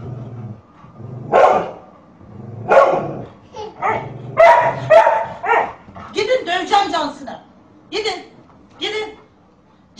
A dog is barking and an adult female speaks